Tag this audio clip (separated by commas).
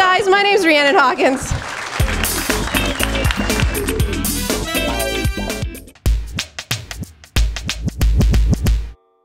Drum machine